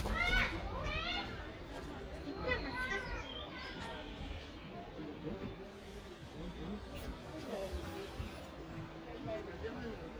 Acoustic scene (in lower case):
park